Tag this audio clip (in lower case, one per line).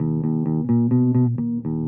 guitar
bass guitar
musical instrument
music
plucked string instrument